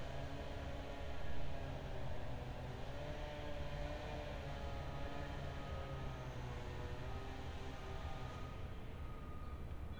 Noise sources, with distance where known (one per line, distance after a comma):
background noise